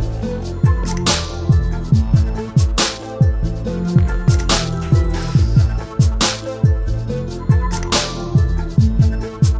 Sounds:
musical instrument
music

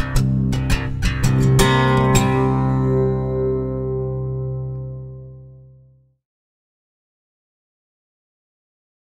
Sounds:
music

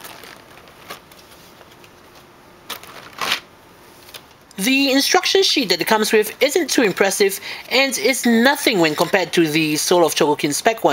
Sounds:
speech

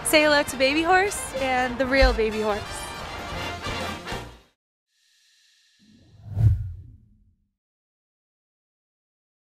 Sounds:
speech
music

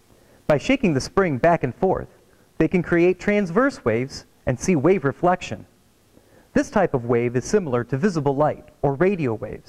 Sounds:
speech

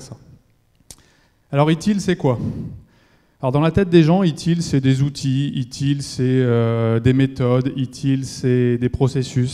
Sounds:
speech

